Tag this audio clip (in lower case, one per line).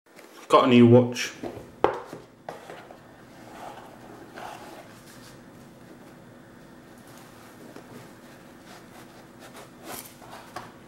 speech